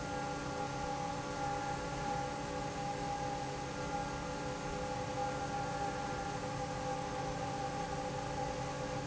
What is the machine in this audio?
fan